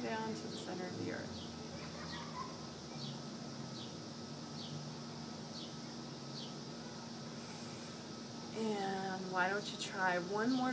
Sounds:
speech, bird

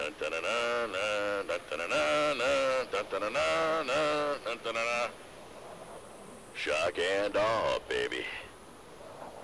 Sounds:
speech

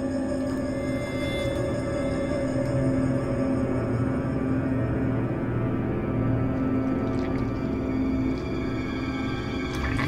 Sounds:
music

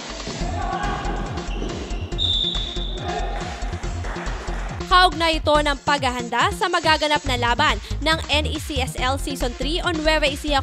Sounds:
basketball bounce

